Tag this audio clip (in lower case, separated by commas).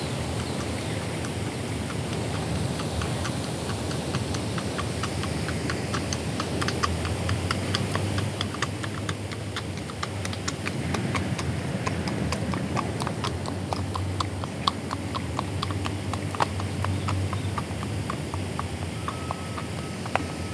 animal, livestock